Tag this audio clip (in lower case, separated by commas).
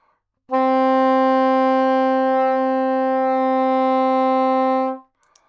wind instrument, musical instrument, music